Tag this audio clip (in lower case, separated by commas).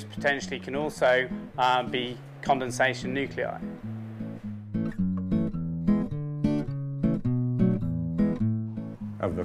music, speech, acoustic guitar